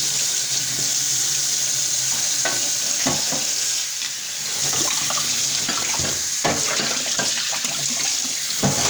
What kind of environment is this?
kitchen